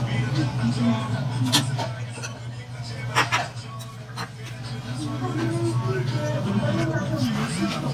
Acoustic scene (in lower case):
restaurant